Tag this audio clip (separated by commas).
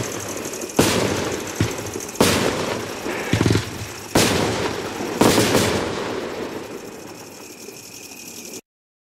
Burst